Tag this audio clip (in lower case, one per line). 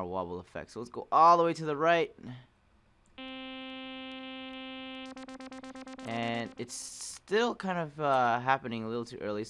speech
synthesizer
music